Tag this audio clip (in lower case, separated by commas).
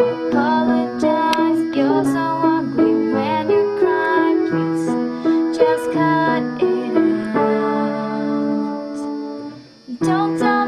music, female singing